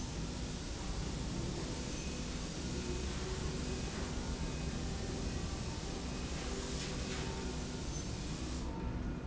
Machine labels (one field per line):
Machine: slide rail